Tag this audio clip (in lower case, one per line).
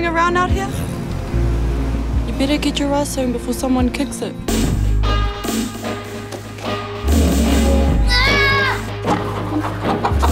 music
speech